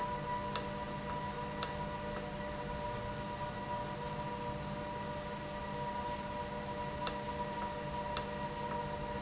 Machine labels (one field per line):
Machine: valve